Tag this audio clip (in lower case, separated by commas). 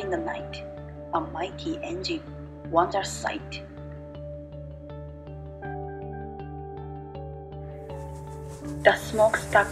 music, speech